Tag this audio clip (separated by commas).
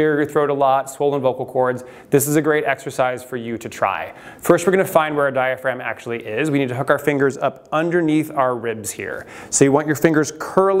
Speech